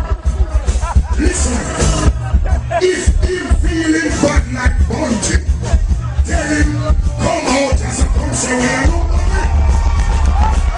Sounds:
music, speech

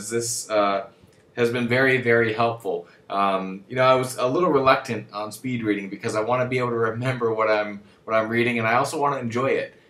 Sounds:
speech

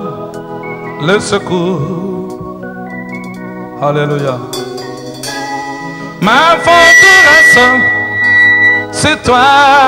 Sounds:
music, speech

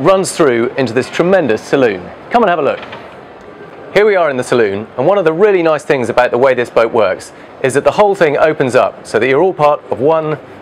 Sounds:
speech

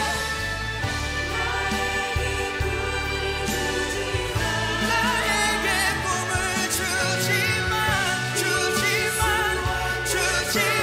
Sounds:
singing, music

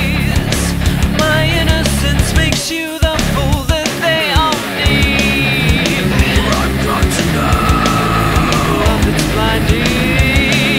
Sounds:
music

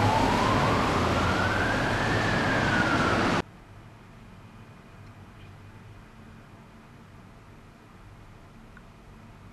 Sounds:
siren, police car (siren), emergency vehicle

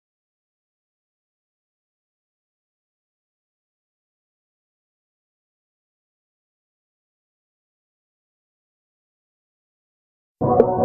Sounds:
silence

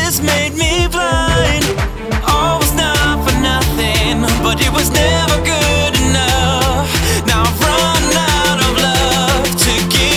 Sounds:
music

